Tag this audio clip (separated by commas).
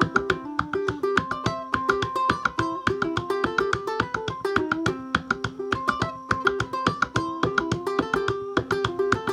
Musical instrument, Music, Ukulele